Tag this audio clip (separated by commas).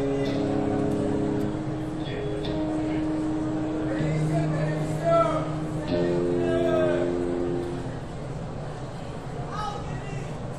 Music, Speech